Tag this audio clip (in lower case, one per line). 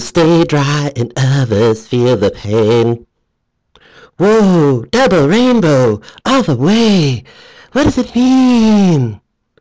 speech